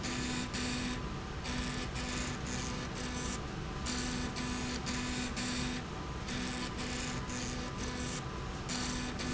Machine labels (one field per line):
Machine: slide rail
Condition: abnormal